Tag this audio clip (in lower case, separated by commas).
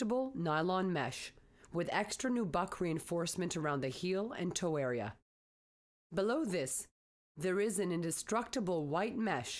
speech